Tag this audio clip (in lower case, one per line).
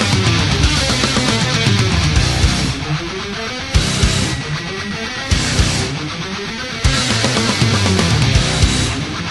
music